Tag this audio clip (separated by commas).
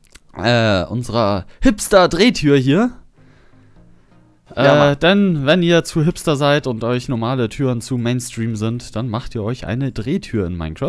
Speech